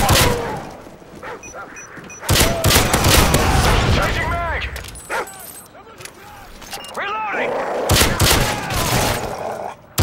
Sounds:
speech

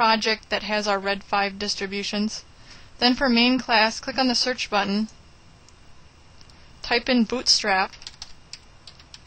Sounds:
speech

